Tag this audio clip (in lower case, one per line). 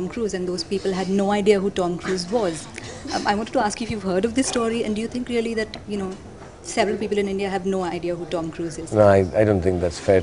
speech